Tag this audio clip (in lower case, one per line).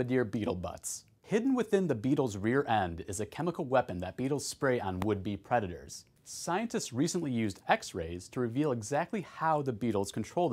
speech